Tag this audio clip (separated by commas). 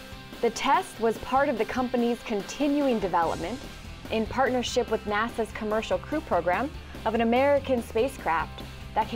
Speech, Music